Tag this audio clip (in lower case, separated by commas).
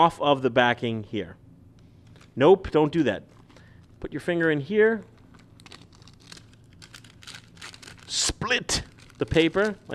speech, tearing